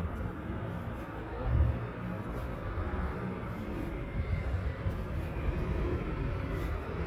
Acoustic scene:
street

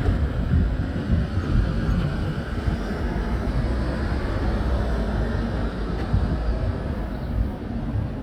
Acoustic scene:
residential area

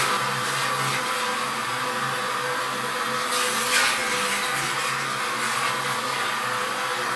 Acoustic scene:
restroom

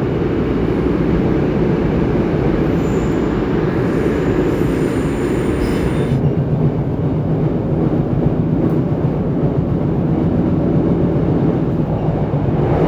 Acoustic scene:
subway train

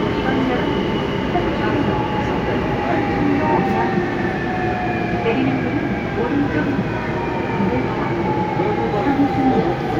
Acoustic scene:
subway train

